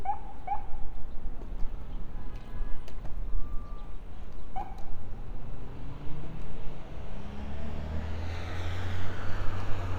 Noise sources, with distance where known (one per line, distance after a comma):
engine of unclear size, near
unidentified alert signal, near